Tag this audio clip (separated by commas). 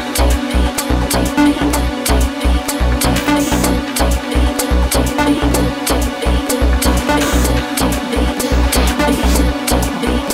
Music, Trance music